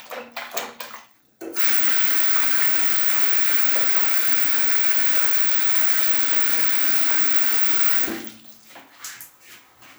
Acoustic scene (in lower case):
restroom